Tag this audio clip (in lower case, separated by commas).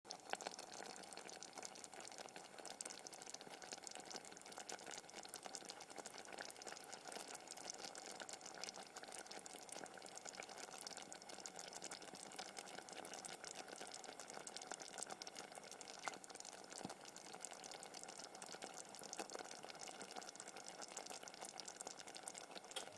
liquid, boiling